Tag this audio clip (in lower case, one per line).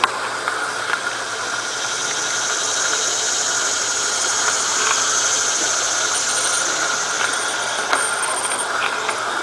railroad car
vehicle
train
rail transport